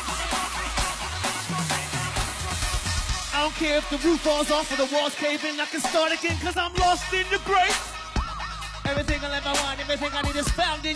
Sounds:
Music, Speech

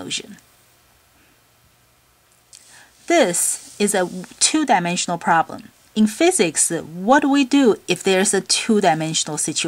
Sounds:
Speech

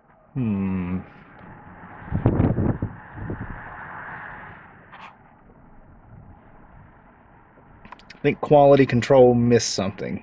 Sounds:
Speech

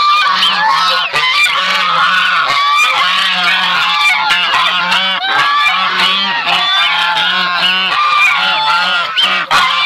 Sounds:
goose honking

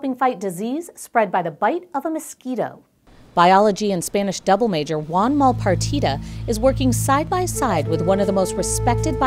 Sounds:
Music, Speech

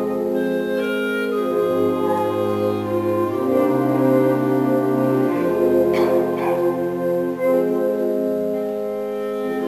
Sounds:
Music

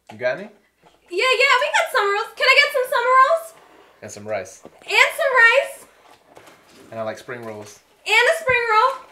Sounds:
Speech

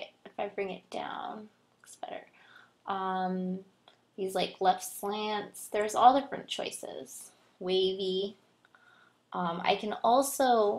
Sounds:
Speech

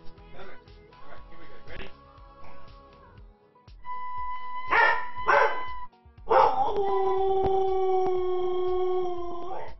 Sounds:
dog howling

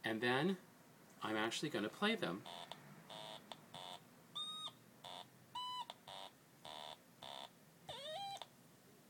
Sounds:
Beep, Speech

